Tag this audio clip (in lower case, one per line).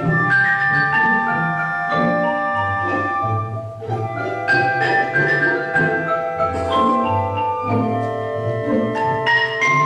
orchestra
musical instrument
music
xylophone
percussion